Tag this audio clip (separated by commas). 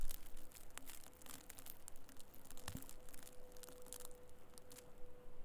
Crackle